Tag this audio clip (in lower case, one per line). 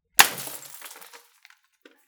glass
shatter